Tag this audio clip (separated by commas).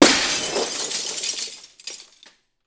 Glass, Shatter